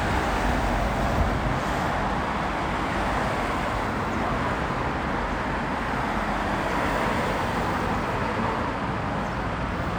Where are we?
on a street